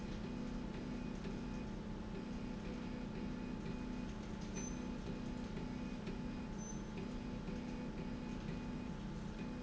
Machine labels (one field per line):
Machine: slide rail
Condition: normal